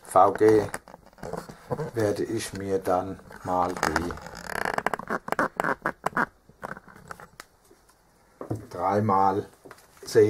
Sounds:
Speech

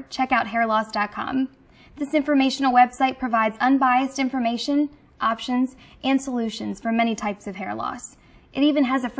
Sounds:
Speech, woman speaking

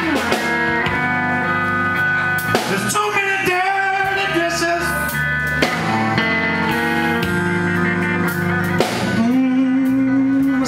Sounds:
Music

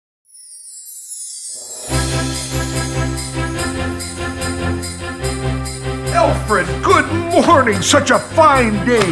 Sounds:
Jingle bell

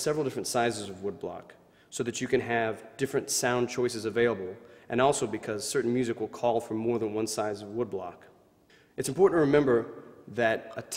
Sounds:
Speech

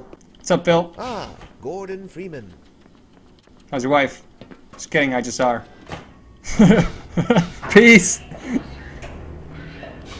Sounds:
Speech, inside a large room or hall

